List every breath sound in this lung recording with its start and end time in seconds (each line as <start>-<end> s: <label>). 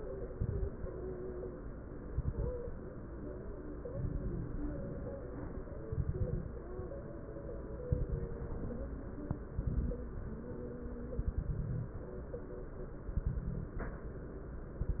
0.30-0.87 s: inhalation
0.30-0.87 s: crackles
2.11-2.68 s: inhalation
2.11-2.68 s: crackles
3.90-4.67 s: inhalation
3.90-4.67 s: crackles
5.91-6.48 s: inhalation
5.91-6.48 s: crackles
7.94-8.68 s: inhalation
7.94-8.68 s: crackles
9.54-10.03 s: inhalation
9.54-10.03 s: crackles
11.19-12.06 s: inhalation
11.19-12.06 s: crackles
13.15-14.02 s: inhalation
13.15-14.02 s: crackles
14.86-15.00 s: inhalation
14.86-15.00 s: crackles